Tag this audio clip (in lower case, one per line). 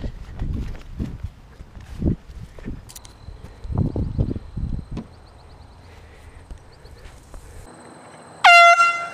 train horning